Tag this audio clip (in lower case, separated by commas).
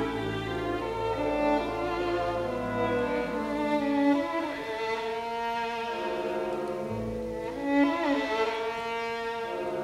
fiddle, cello, bowed string instrument, classical music, musical instrument, music, orchestra